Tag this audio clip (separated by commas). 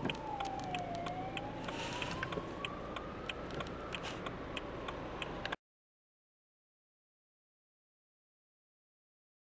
Vehicle, Police car (siren)